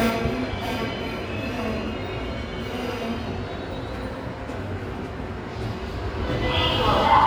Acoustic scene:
subway station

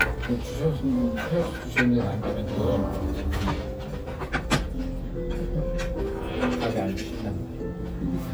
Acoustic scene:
restaurant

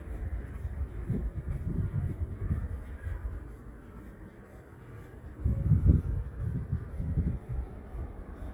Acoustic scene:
residential area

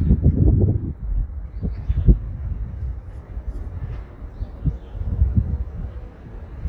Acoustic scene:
street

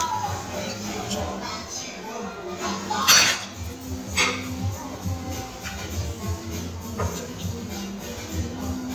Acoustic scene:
restaurant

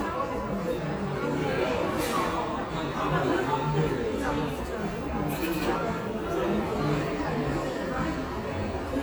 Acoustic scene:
crowded indoor space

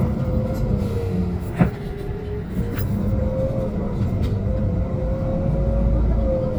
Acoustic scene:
bus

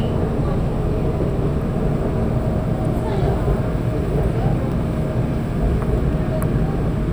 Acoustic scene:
subway train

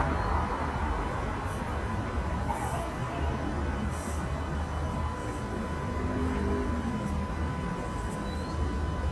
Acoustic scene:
street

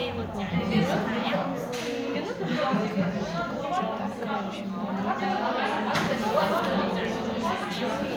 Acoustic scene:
crowded indoor space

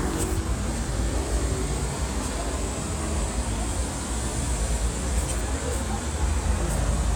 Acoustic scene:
street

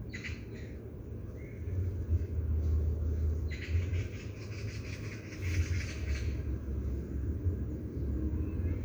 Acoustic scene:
park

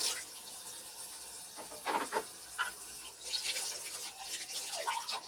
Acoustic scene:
kitchen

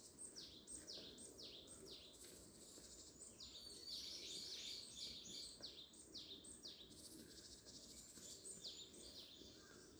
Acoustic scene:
park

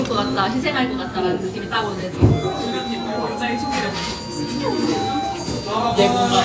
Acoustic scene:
restaurant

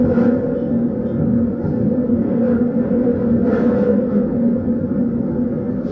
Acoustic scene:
subway train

